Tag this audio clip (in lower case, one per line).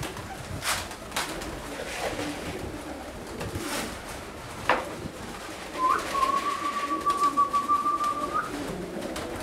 dove
bird song
bird
coo